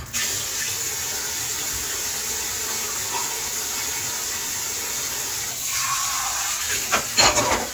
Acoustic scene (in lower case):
kitchen